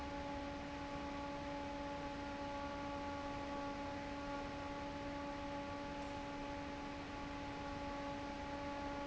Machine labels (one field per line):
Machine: fan